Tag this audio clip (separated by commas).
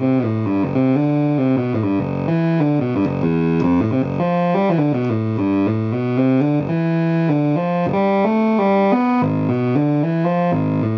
Musical instrument, Synthesizer, Piano, Keyboard (musical), Music, Electric piano